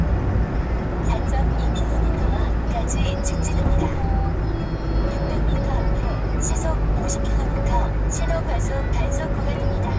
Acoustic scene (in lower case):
car